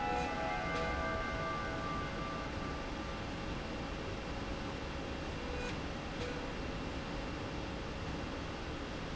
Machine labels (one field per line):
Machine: slide rail